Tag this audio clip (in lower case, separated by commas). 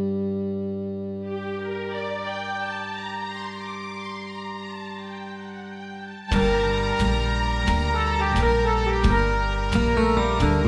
foghorn